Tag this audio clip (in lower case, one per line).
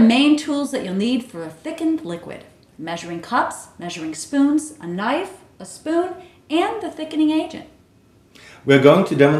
speech